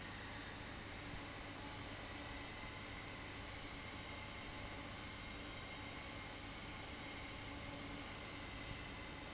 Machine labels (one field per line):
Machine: fan